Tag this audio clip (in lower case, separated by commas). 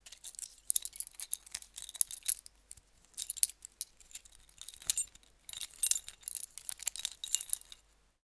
domestic sounds, keys jangling